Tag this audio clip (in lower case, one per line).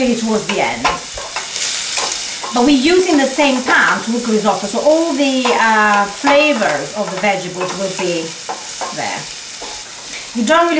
inside a small room
speech